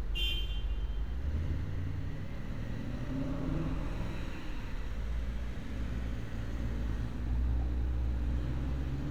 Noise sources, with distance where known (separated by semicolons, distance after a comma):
engine of unclear size; car horn